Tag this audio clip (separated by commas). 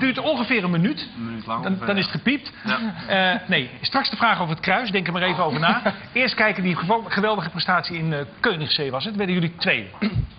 Speech